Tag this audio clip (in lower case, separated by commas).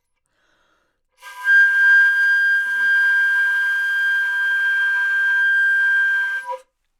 woodwind instrument, music, musical instrument